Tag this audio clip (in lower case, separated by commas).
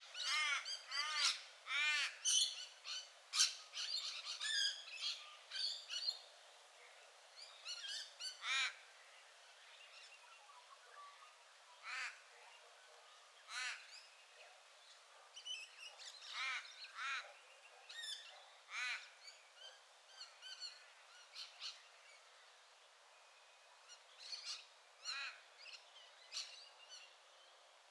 wild animals, animal, bird, crow